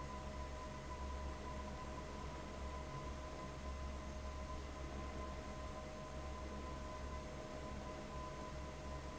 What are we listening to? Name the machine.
fan